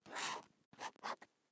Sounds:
Domestic sounds, Writing

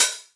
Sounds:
Hi-hat, Music, Percussion, Cymbal, Musical instrument

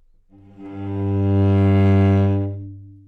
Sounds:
Musical instrument, Music, Bowed string instrument

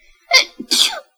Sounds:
Human voice, Sneeze, Respiratory sounds

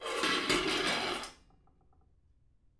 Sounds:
home sounds, dishes, pots and pans

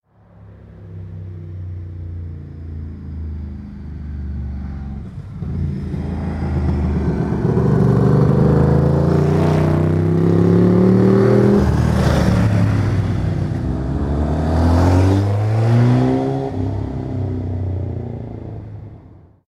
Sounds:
Vehicle, Motor vehicle (road), Motorcycle

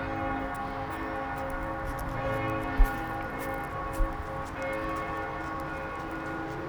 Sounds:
Walk

